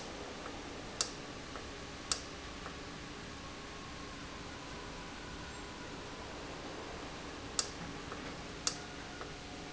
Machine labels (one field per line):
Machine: valve